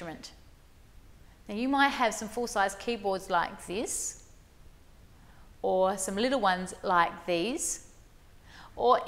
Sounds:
Speech

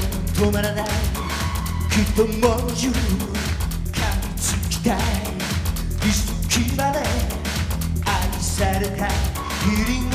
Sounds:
Music of Asia, Music, Singing

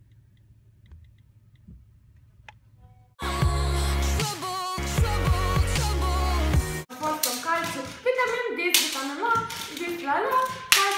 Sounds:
inside a small room, Music, Speech

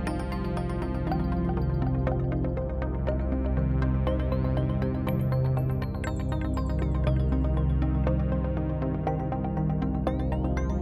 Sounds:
Music

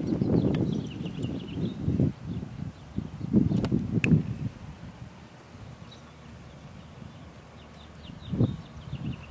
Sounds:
Horse, Wind, Animal

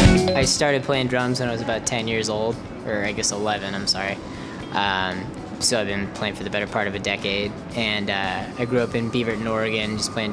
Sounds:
Speech, Music

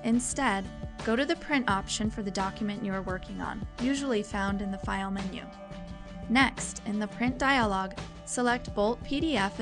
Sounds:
Speech, Music

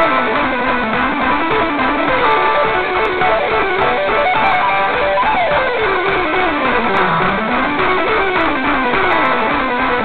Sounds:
Music

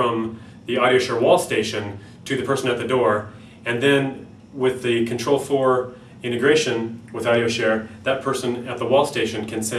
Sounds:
Speech

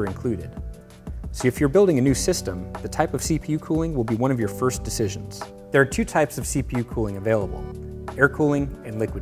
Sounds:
Music, Speech

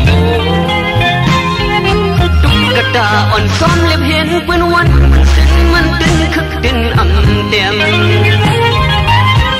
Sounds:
Music, Music of Bollywood

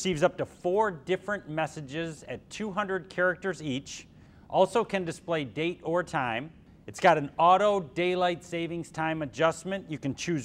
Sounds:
Speech

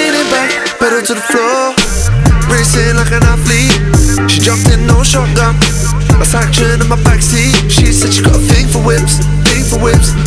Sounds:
Music

